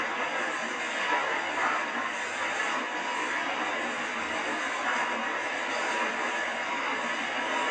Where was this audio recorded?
on a subway train